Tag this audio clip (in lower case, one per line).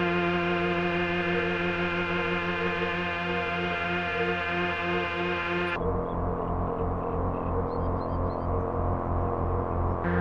synthesizer
musical instrument
music
keyboard (musical)